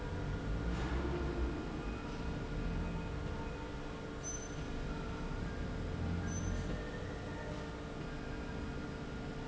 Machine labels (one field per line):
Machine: slide rail